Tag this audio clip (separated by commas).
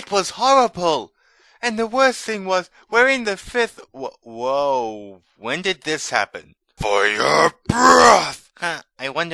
Speech